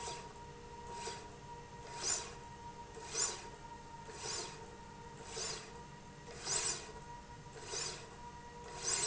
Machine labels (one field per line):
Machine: slide rail